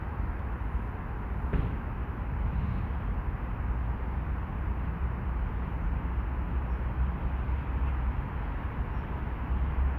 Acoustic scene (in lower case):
residential area